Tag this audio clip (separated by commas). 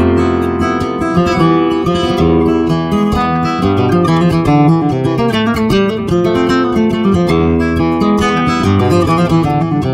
Plucked string instrument, playing acoustic guitar, Acoustic guitar, Music, Strum, Guitar, Musical instrument